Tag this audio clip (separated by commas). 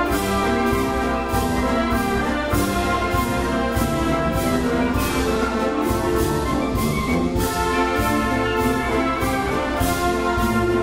Orchestra, Musical instrument, Classical music, Music